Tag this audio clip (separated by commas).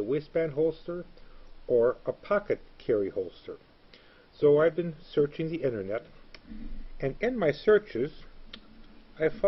Speech